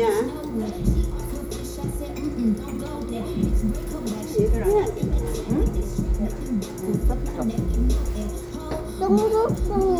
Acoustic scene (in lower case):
restaurant